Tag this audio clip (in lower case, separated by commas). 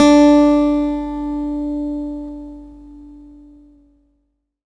acoustic guitar, guitar, music, musical instrument, plucked string instrument